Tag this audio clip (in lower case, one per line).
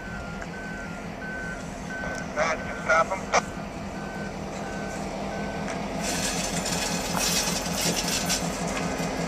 train wagon
train
speech
outside, urban or man-made
vehicle